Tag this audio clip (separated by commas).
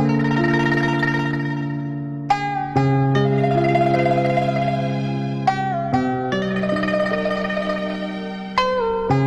Tender music, Music